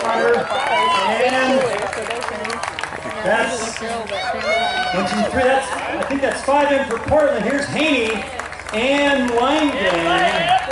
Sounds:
speech
run

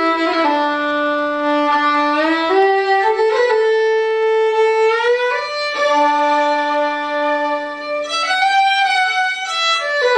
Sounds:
playing violin
music
fiddle
musical instrument

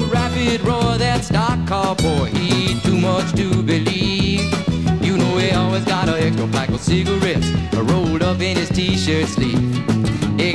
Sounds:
music

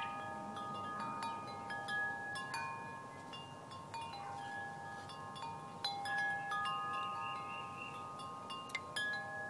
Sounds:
wind chime
chime

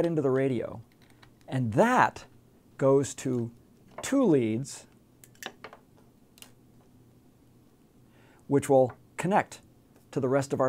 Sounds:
speech

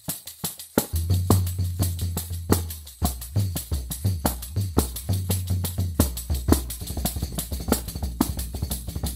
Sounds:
drum
music
musical instrument
percussion
tambourine

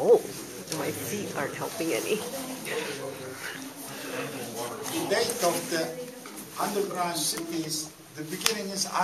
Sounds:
speech

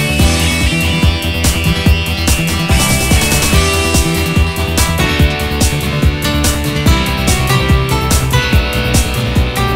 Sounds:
music
background music
blues

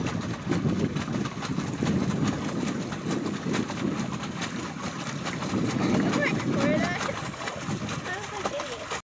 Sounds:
boat
wind
wind noise (microphone)

